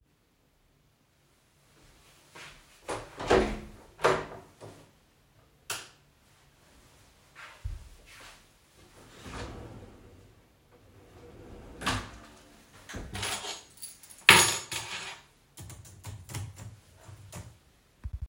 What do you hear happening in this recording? I opened the room door and turned on the light. I opened and closed a drawer, handled a keychain, and typed briefly on a keyboard.